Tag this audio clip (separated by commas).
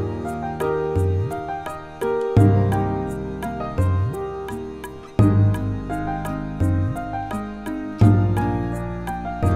Music, Musical instrument